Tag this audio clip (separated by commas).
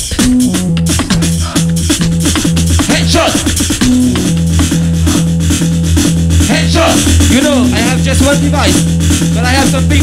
beat boxing